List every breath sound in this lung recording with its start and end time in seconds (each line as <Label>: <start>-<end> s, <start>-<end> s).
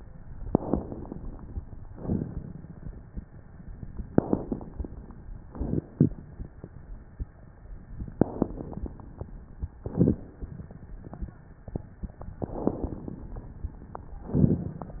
Inhalation: 0.43-1.63 s, 4.07-5.41 s, 8.14-9.48 s, 12.33-13.88 s
Exhalation: 1.90-3.23 s, 5.44-6.78 s, 9.78-11.33 s, 14.24-15.00 s
Crackles: 0.40-1.11 s, 1.91-2.62 s, 4.05-4.91 s, 5.40-6.26 s, 8.10-8.96 s, 9.76-10.62 s, 12.36-13.22 s